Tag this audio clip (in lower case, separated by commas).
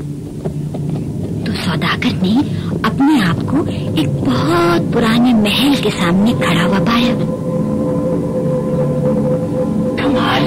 speech, music